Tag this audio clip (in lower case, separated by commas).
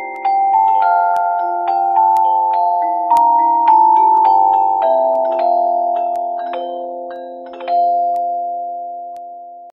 lullaby, music